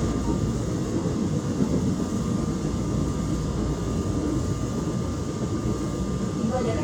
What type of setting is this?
subway train